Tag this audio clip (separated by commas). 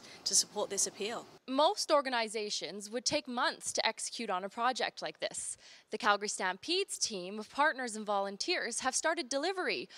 Speech